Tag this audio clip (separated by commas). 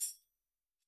Percussion, Musical instrument, Music, Tambourine